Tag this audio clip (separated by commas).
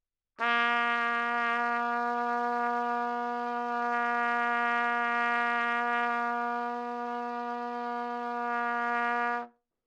Musical instrument, Trumpet, Music, Brass instrument